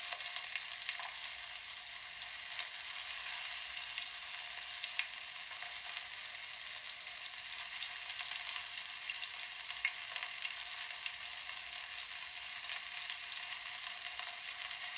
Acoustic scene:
kitchen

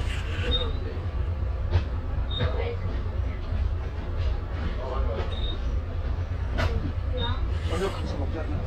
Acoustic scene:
bus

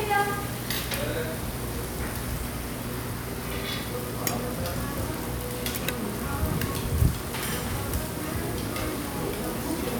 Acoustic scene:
restaurant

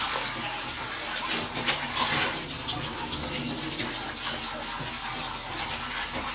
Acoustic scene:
kitchen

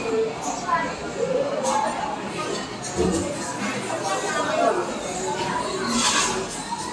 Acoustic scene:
cafe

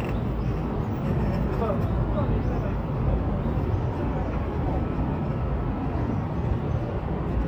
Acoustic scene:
park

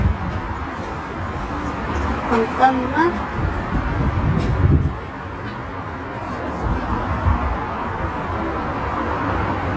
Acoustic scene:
street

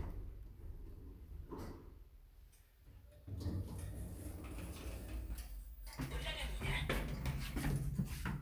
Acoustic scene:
elevator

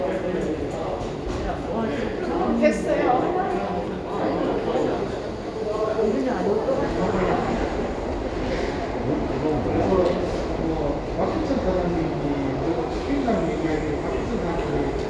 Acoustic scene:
crowded indoor space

